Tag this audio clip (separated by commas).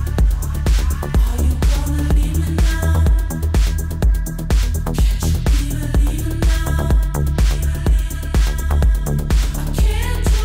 Music